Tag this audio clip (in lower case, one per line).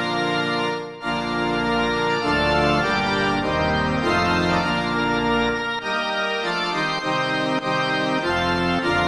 tender music
soundtrack music
music